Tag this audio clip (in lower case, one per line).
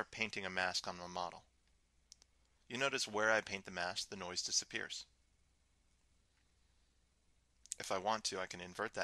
speech